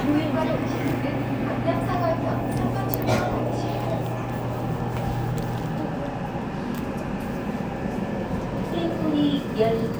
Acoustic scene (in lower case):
subway train